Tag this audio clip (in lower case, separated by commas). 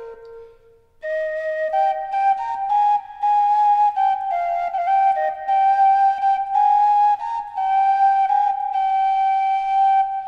music